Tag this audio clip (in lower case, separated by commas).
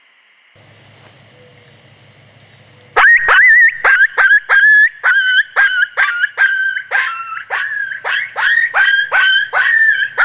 coyote howling